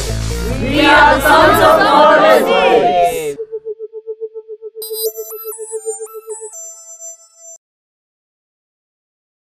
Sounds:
Speech, Music

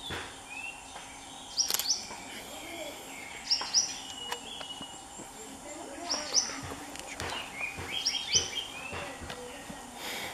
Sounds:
Animal, Bird

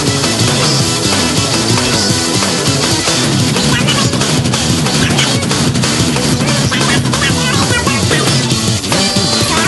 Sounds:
Music

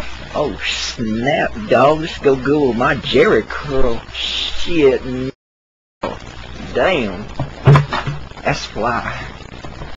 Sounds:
Speech

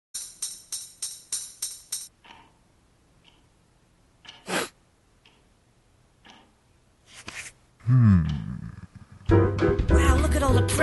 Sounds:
Music

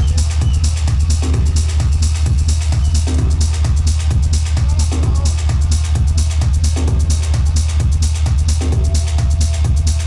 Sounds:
Music, Electronic music, Techno

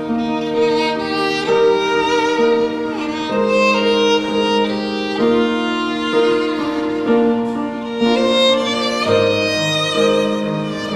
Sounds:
Musical instrument, Music, Violin

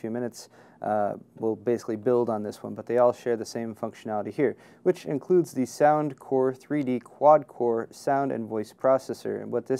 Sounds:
Speech

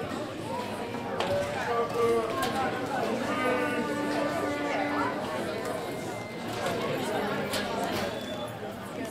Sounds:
Speech

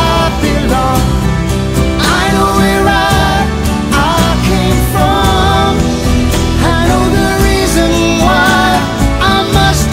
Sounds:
Music

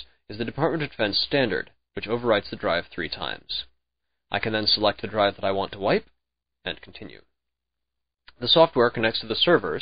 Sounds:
Speech

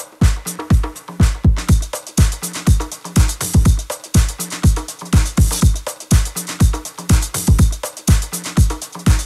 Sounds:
Rustle, Music

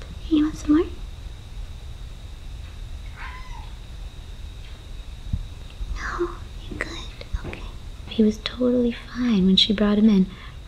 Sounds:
Speech

